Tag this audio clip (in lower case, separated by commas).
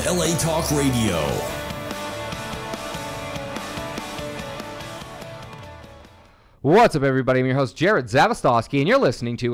music, speech